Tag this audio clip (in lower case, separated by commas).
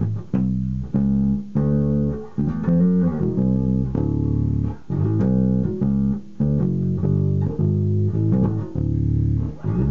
music, guitar, bass guitar, musical instrument